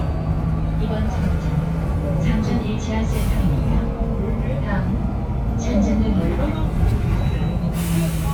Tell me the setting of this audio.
bus